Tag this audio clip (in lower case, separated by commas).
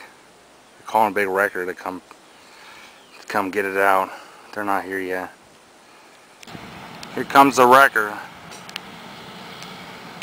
speech, vehicle